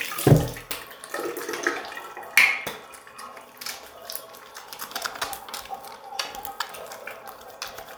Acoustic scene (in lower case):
restroom